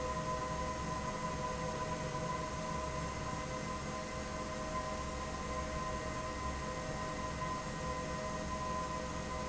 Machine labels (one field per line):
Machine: fan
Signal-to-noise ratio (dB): -6 dB